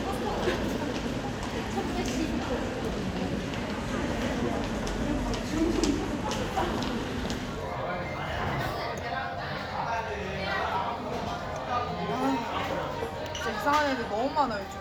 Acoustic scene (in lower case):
crowded indoor space